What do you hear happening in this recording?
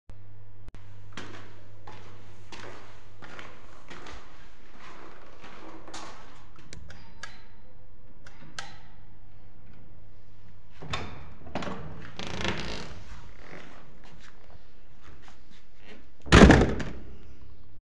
I was walking up the stairs then I rang the doorbell then my brother open the door for me finally I closed the door